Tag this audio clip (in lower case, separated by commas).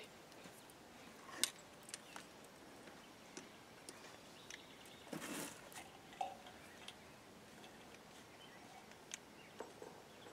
outside, rural or natural